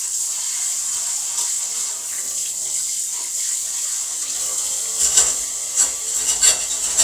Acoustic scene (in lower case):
kitchen